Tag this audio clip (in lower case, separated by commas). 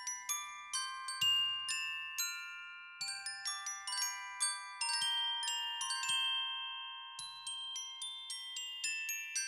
playing glockenspiel